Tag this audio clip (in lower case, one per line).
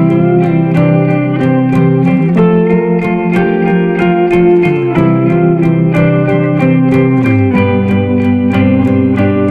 music
plucked string instrument